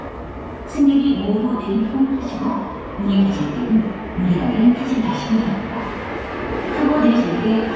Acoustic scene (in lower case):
subway station